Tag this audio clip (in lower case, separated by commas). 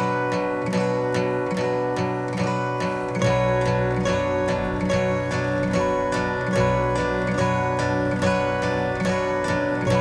music